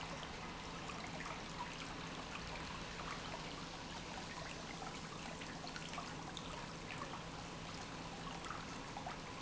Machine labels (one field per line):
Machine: pump